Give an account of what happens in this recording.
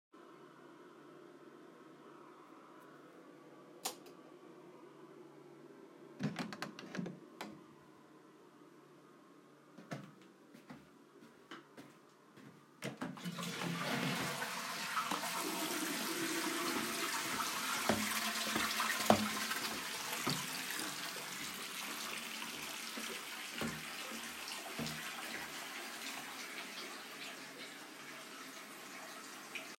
The light was turned on and the bathroom door was opened. Footsteps continued into the room while the toilet was flushed and the tap was turned on with a slight delay, both overlapping.